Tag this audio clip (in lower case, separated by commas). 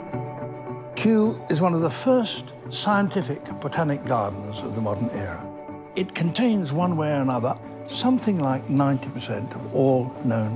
speech, music